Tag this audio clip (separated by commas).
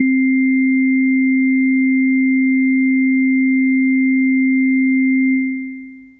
Musical instrument, Organ, Keyboard (musical), Music